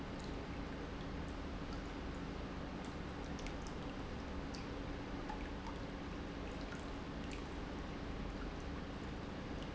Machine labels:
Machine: pump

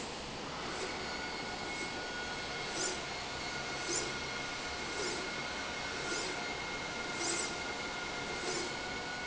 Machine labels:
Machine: slide rail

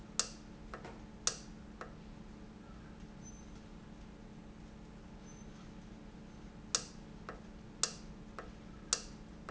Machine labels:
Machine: valve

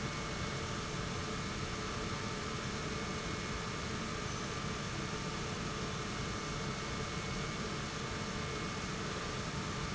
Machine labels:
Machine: pump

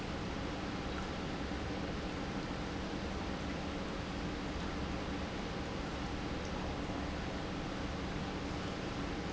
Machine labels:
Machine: pump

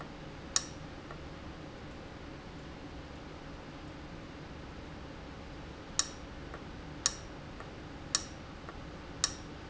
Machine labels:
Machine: valve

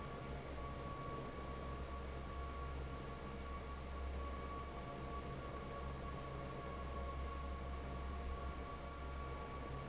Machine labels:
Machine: fan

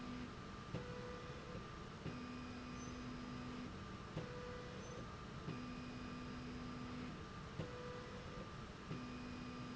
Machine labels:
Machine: slide rail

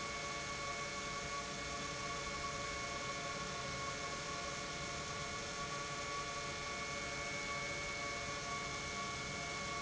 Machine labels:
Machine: pump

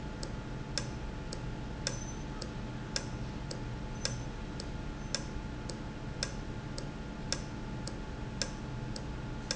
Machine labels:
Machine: valve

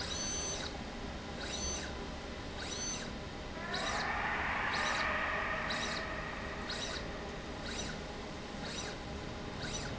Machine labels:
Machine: slide rail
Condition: abnormal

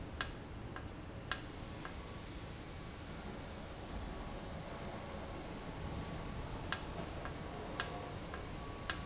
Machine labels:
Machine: valve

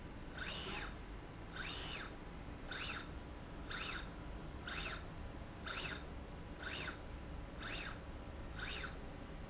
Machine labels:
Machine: slide rail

